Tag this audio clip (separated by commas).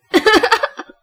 Human voice, Laughter